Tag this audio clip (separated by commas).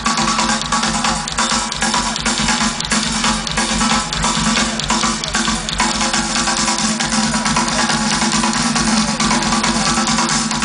Bass drum, Music, Musical instrument, Drum kit, Drum